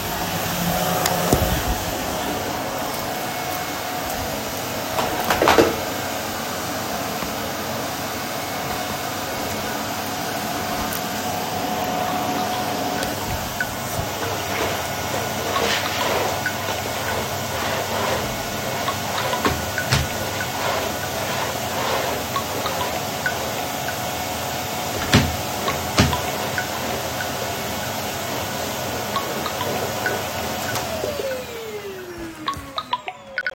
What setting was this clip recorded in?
bedroom